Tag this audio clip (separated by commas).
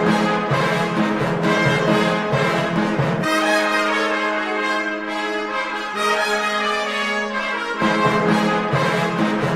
Piano, Keyboard (musical)